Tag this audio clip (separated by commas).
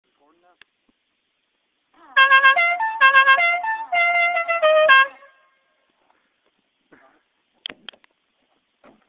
honking